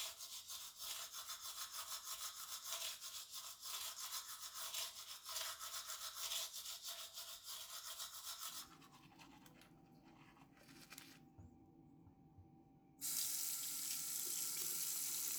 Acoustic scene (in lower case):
restroom